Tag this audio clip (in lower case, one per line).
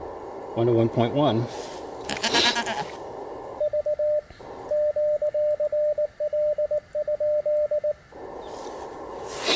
sheep
speech